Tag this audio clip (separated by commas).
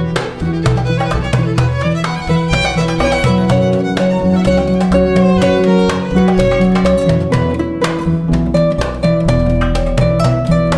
Bowed string instrument, Music, Musical instrument, Harp